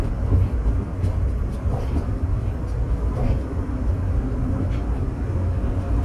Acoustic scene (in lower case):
subway train